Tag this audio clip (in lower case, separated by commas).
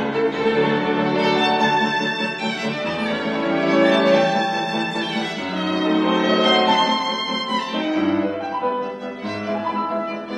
violin, music, musical instrument